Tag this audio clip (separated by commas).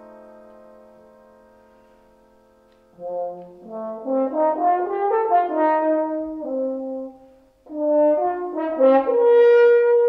French horn, Piano, playing french horn, Music